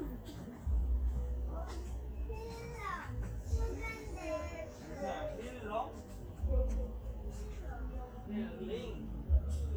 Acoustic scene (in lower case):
park